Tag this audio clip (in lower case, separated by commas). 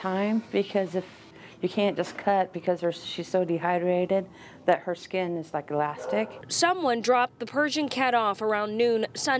speech